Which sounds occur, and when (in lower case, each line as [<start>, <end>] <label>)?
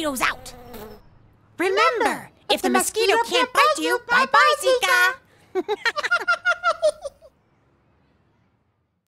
[0.00, 0.31] kid speaking
[0.00, 9.05] mechanisms
[0.25, 1.11] mosquito
[0.58, 1.04] tweet
[1.52, 2.24] kid speaking
[2.47, 5.18] kid speaking
[5.24, 5.45] breathing
[5.52, 7.31] laughter